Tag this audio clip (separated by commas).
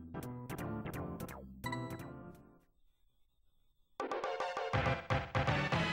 Music